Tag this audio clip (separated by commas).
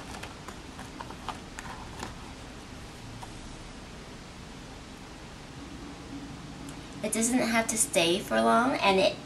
opening or closing drawers